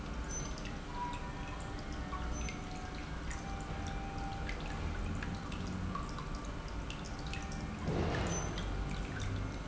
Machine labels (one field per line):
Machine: pump